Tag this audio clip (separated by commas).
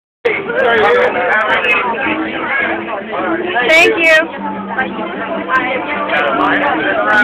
Speech, Music